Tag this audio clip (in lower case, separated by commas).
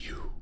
human voice, whispering